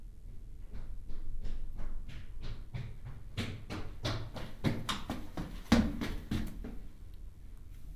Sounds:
run

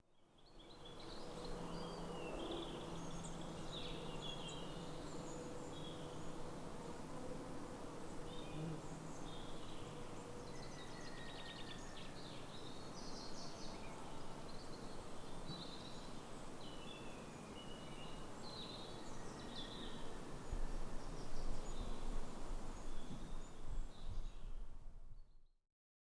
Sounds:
wild animals, bird, bird vocalization, animal

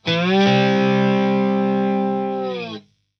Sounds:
guitar, musical instrument, plucked string instrument, music

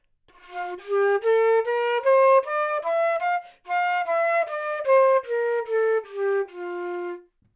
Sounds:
musical instrument, woodwind instrument, music

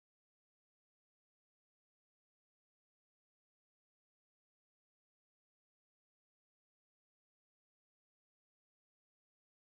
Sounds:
drum kit, musical instrument, music, percussion

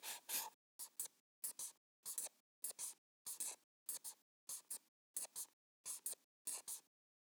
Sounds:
writing, home sounds

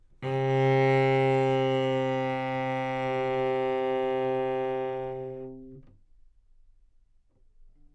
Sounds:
music, musical instrument, bowed string instrument

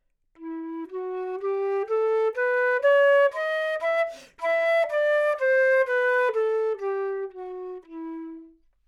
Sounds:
musical instrument, woodwind instrument, music

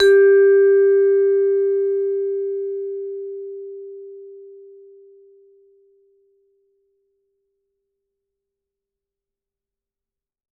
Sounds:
musical instrument, music, percussion, mallet percussion

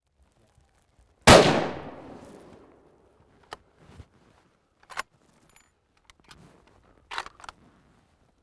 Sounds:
gunfire, explosion

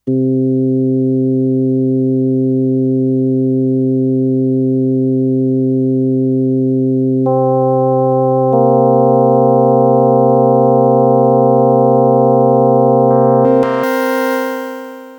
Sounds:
music, keyboard (musical), musical instrument

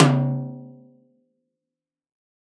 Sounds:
music, snare drum, percussion, drum, musical instrument

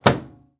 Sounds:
microwave oven, domestic sounds

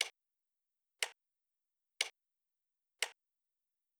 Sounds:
clock, mechanisms, tick-tock

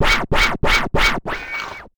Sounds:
music, scratching (performance technique), musical instrument

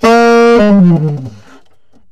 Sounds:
music, wind instrument, musical instrument

